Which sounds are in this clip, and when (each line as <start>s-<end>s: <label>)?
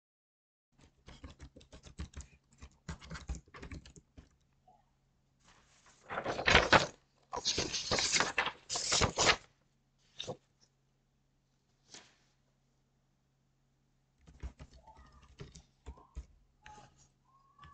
1.0s-4.3s: keyboard typing
14.2s-17.6s: keyboard typing